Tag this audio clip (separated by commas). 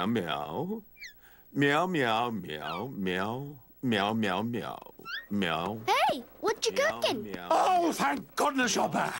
Speech